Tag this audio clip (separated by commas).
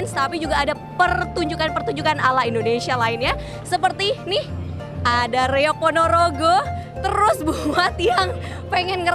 Music, Speech